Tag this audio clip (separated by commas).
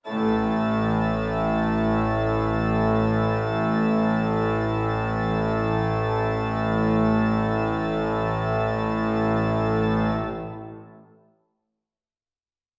Music, Musical instrument, Organ, Keyboard (musical)